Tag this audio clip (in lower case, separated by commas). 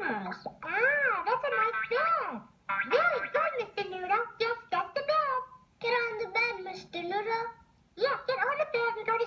speech